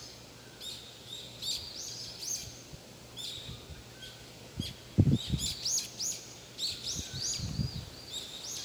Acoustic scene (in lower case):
park